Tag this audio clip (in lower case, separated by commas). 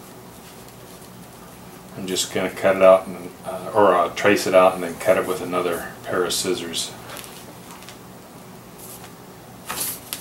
speech, inside a small room